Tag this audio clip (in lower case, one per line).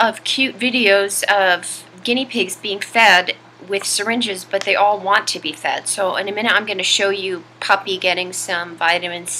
speech